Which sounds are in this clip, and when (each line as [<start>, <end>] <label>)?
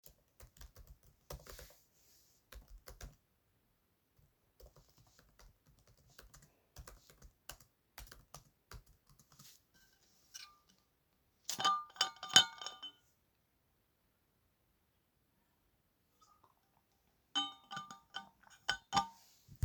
[0.00, 9.75] keyboard typing